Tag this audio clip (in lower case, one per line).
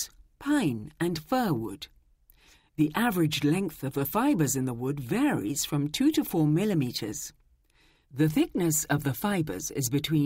speech